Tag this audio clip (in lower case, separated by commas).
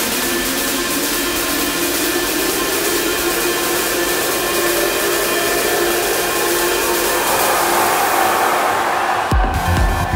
music